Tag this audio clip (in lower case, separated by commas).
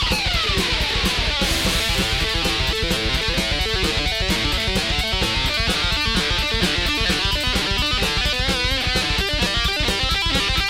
music, musical instrument, plucked string instrument, bass guitar